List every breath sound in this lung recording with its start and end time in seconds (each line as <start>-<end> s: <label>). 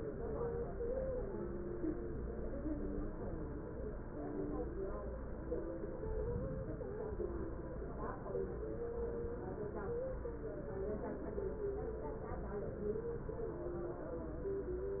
6.02-7.08 s: inhalation